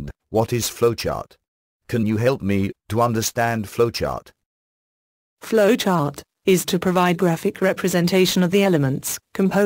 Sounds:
speech

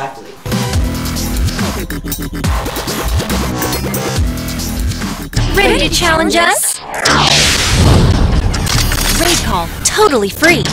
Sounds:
speech, music

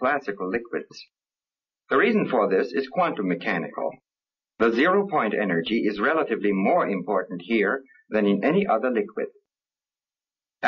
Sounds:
speech

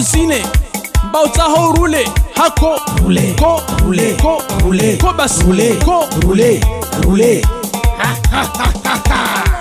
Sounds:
music

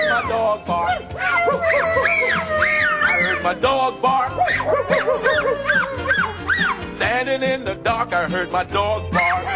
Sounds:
bow-wow, music

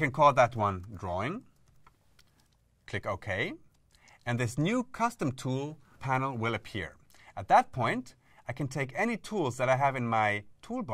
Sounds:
speech

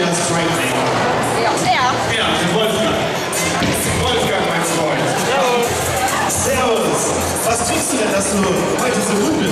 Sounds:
bowling impact

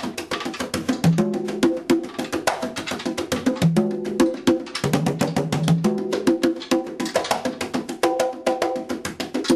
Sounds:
music, percussion

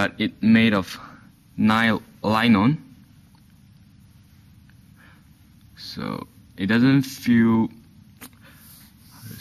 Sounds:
speech

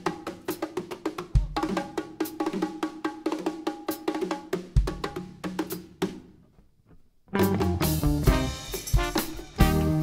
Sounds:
music, orchestra, inside a large room or hall

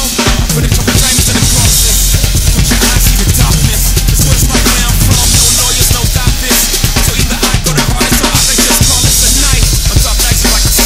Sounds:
rimshot, drum roll, percussion, drum kit, drum, bass drum, snare drum

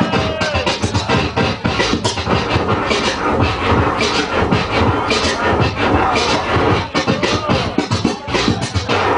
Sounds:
scratching (performance technique), music

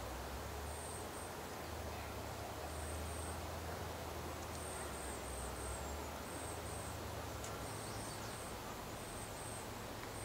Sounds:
woodpecker pecking tree

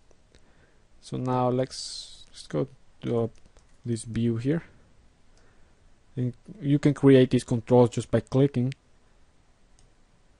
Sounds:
speech

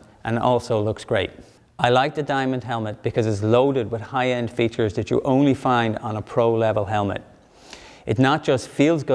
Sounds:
speech

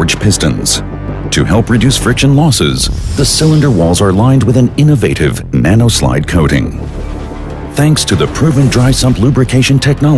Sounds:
speech, music

